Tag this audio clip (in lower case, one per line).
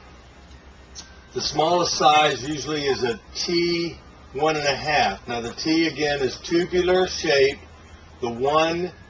speech